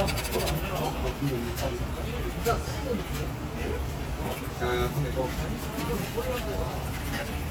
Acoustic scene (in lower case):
crowded indoor space